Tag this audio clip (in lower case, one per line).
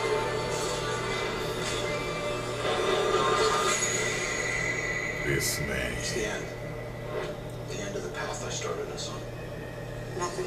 television